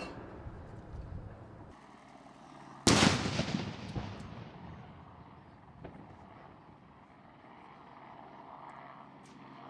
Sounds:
firing cannon

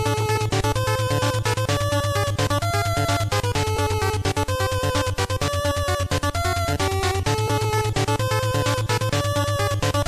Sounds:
Music

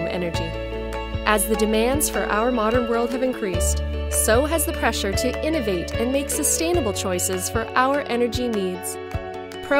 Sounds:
Music, Speech

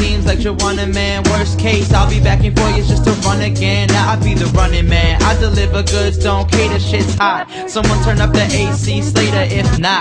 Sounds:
Music

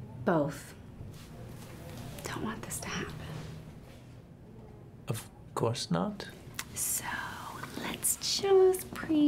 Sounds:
Whispering, people whispering, Speech

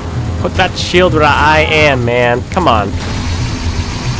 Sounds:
Music, Speech

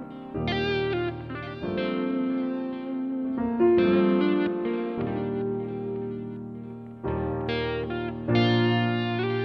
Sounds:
Guitar, Plucked string instrument, Strum, Music, Musical instrument, Acoustic guitar

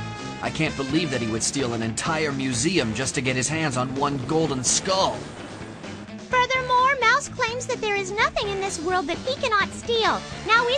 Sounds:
Speech, Music

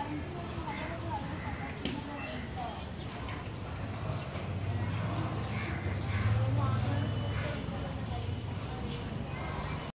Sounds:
Speech

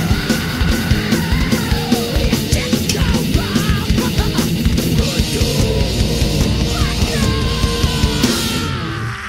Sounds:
Music, Rock music, Heavy metal

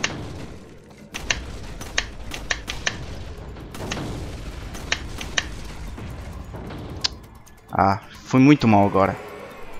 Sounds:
cap gun shooting

